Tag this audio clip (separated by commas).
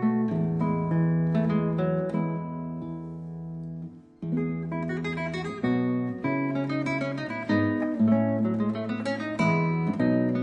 Music